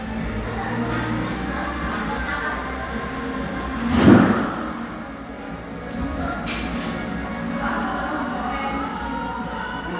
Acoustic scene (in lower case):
crowded indoor space